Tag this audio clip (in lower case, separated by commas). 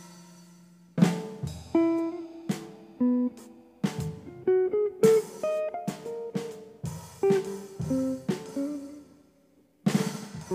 rimshot, drum kit, drum, snare drum, bass drum, percussion